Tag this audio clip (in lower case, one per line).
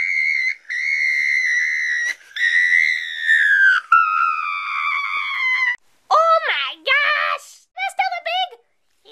speech
inside a small room